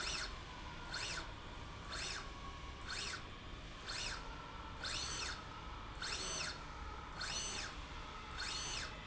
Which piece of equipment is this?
slide rail